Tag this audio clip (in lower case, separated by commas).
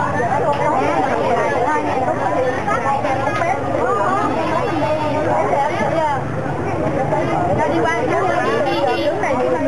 speech